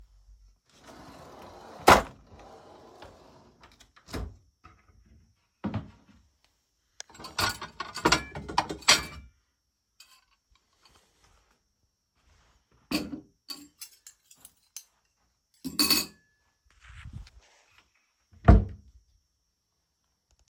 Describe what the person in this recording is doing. I opened a kitchen cabinet to grab a plate. I set the plate and a fork down on the counter and closed the cabinet.